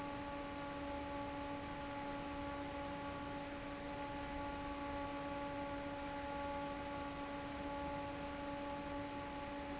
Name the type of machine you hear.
fan